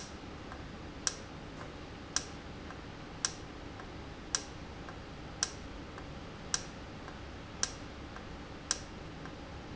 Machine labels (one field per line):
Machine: valve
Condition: normal